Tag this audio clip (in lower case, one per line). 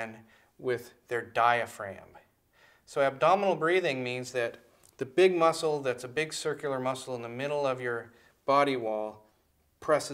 speech